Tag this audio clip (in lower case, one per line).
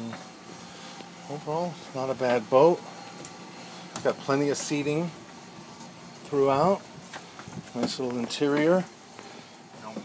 speech